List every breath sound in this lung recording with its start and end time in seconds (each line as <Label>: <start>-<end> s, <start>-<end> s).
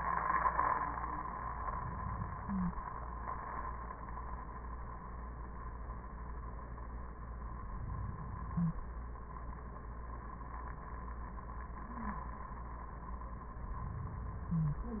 Inhalation: 7.51-8.92 s, 13.67-15.00 s
Exhalation: 1.50-2.94 s